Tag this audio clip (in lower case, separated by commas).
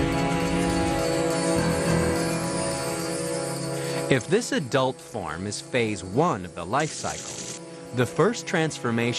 music, speech